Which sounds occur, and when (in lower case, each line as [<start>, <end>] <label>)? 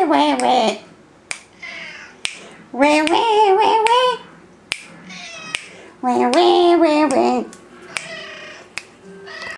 [0.00, 0.71] human sounds
[0.00, 9.55] mechanisms
[0.35, 0.48] finger snapping
[1.27, 1.35] finger snapping
[1.57, 2.14] meow
[2.23, 2.40] finger snapping
[2.71, 4.22] human sounds
[3.03, 3.11] finger snapping
[3.83, 3.96] finger snapping
[4.46, 4.58] tick
[4.67, 4.89] finger snapping
[5.02, 5.59] meow
[5.50, 5.67] finger snapping
[5.99, 7.46] human sounds
[6.30, 6.46] finger snapping
[7.06, 7.22] finger snapping
[7.42, 9.55] music
[7.50, 7.62] tick
[7.69, 8.68] meow
[7.92, 8.04] finger snapping
[8.72, 8.87] finger snapping
[8.98, 9.11] tick
[9.22, 9.55] meow
[9.37, 9.51] tick